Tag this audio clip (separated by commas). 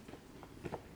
footsteps, Run